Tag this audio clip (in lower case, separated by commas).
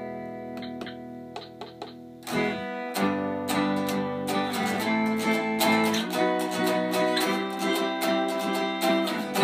electric guitar, musical instrument, plucked string instrument, guitar, music, strum